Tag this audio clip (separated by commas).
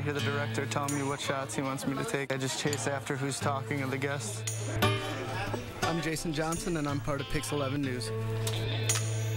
Music, Speech